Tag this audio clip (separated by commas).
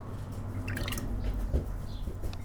Pour, Animal, bird call, Trickle, Bird, Wild animals, tweet, Liquid